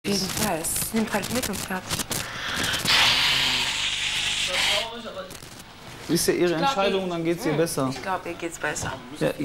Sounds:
people nose blowing

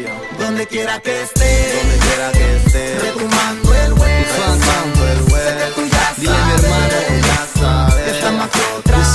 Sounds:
music

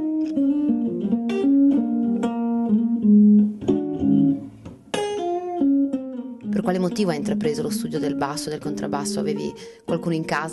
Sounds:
speech
musical instrument
double bass
bass guitar
music
guitar

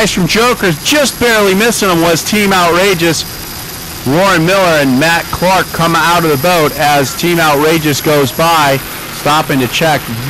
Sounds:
sailing ship
speech

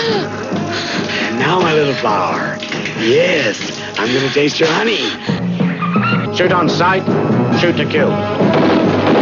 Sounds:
music
speech

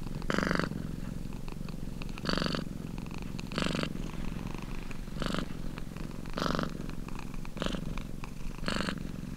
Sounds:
cat purring

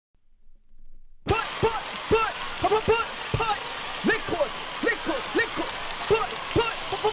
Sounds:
speech

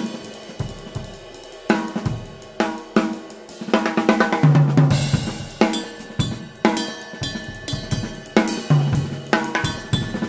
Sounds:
music
drum
cymbal
drum kit
musical instrument
hi-hat
snare drum

